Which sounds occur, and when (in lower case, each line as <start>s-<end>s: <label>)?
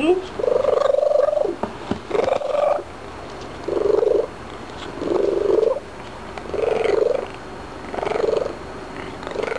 0.0s-0.3s: woman speaking
0.0s-9.5s: mechanisms
0.2s-0.3s: tick
0.4s-1.6s: purr
1.6s-1.7s: tick
1.9s-2.0s: tick
2.1s-2.9s: purr
3.4s-3.5s: tick
3.6s-4.3s: purr
4.8s-4.9s: tick
5.0s-5.8s: purr
6.0s-6.1s: tick
6.4s-6.4s: tick
6.5s-7.4s: purr
7.9s-8.6s: purr
9.0s-9.5s: purr